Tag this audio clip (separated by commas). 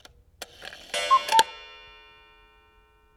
Mechanisms, Clock